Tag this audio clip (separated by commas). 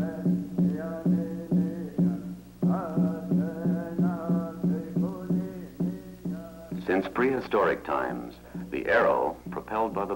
Speech, Music